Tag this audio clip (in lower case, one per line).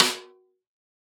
drum
snare drum
musical instrument
music
percussion